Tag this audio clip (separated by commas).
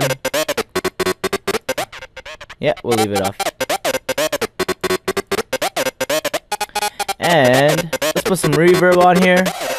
Synthesizer, Music, Electronic music